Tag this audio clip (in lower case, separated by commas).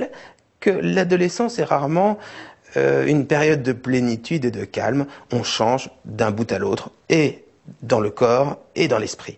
speech